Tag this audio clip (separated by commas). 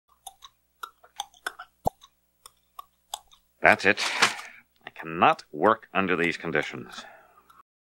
Speech